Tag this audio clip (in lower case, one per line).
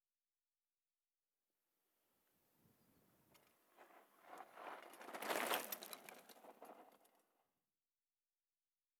bicycle
vehicle